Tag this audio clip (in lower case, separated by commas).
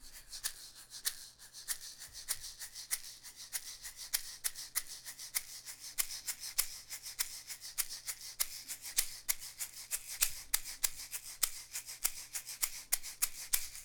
music, percussion, rattle (instrument), musical instrument